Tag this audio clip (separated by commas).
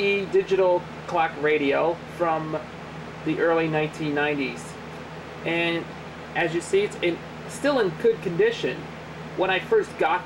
Speech